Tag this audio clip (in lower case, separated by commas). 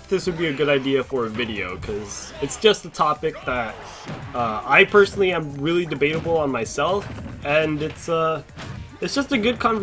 speech, music